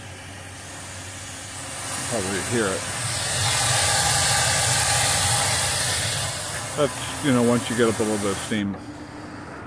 Pressurized air hissing then spraying followed by a man speaking